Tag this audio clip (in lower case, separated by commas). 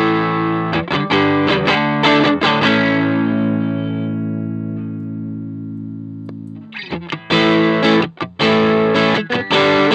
music, distortion, plucked string instrument, chorus effect, effects unit, guitar, musical instrument